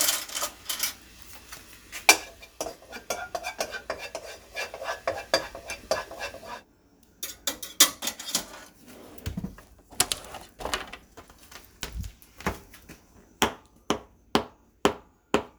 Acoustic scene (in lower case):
kitchen